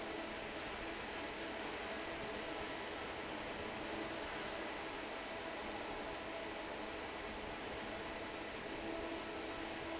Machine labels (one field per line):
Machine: fan